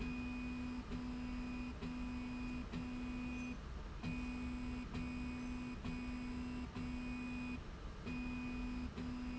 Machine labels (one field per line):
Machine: slide rail